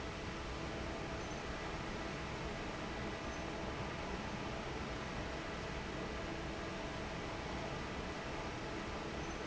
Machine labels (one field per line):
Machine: fan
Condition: normal